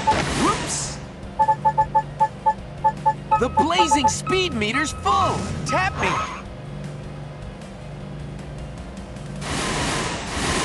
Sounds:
Speech

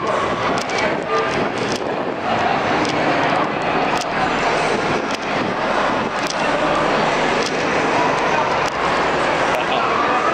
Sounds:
Speech

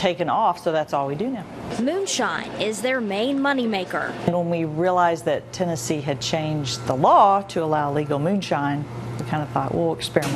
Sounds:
Speech

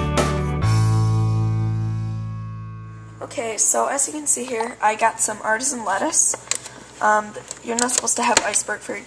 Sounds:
Music, Speech

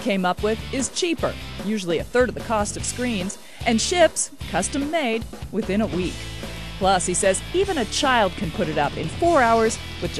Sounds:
Music, Speech

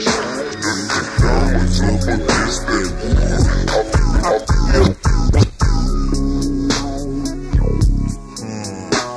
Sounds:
Music

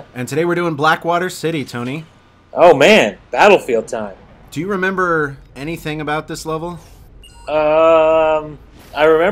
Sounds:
Speech

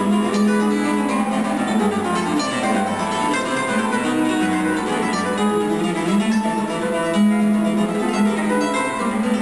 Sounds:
Musical instrument, Plucked string instrument, Guitar, Strum, Music, Electric guitar

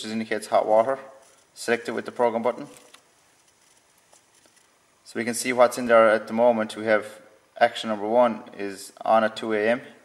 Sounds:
Speech

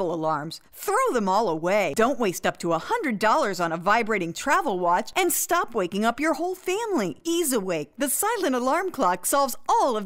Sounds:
Speech

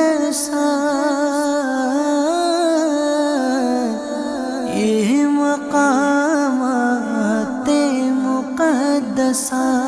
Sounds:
Music

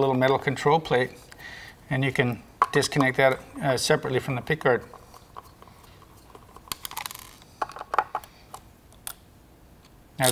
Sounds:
Speech

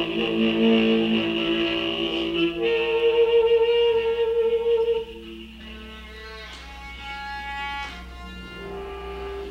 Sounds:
Bowed string instrument

